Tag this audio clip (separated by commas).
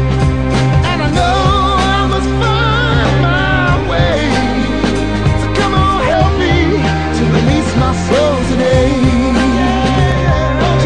Music, Psychedelic rock